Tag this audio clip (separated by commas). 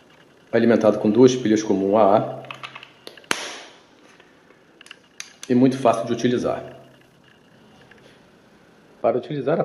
Speech